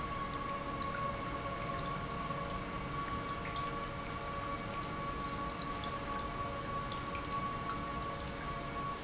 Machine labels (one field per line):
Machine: pump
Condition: normal